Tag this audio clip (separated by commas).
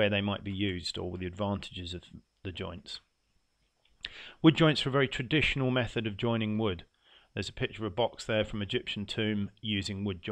Speech